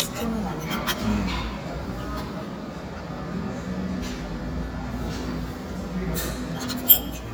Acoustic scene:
cafe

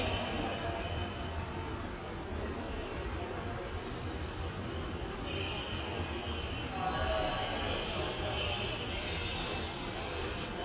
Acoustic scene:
subway station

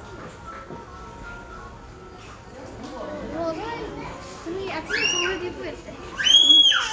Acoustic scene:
crowded indoor space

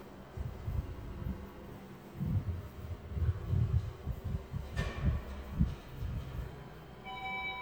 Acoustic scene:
elevator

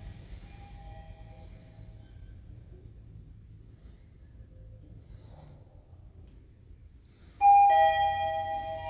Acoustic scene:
elevator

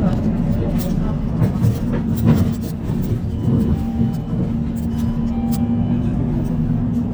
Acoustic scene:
bus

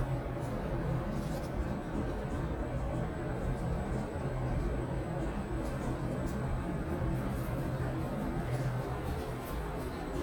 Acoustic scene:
elevator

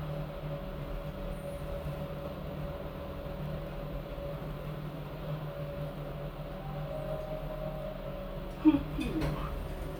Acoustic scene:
elevator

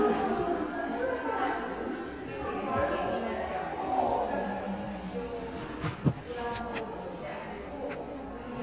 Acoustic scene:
cafe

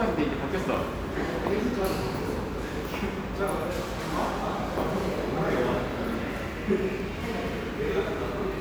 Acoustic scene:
crowded indoor space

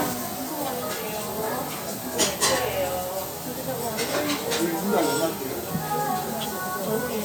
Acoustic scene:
restaurant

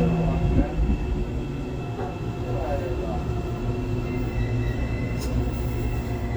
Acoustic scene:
subway train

